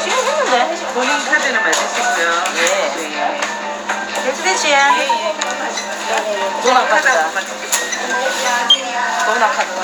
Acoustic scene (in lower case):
crowded indoor space